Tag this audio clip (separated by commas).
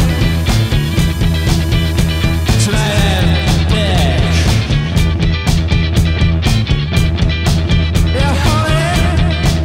Music